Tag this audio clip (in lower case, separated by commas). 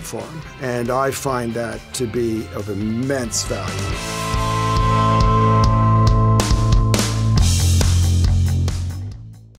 speech, music